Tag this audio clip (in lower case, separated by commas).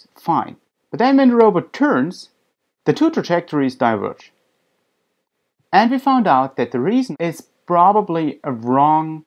speech